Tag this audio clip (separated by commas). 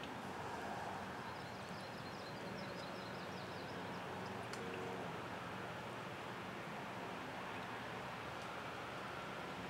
Animal, outside, rural or natural